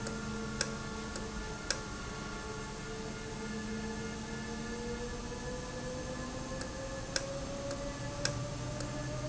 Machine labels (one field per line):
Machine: valve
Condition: normal